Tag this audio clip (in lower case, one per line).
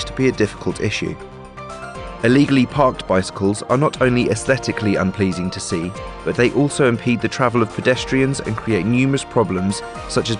speech
music